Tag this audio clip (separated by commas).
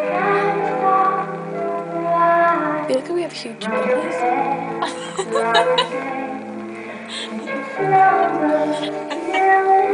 Speech, Lullaby, Music